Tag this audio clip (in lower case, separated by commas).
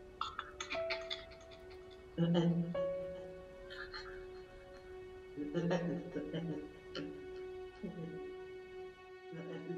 narration, music, male speech